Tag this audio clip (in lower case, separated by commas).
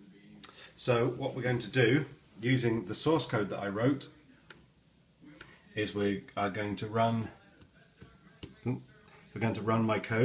speech